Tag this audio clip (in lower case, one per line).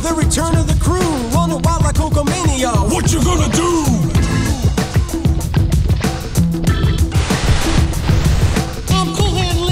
music
funk